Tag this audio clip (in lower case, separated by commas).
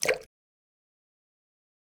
drip, liquid, splatter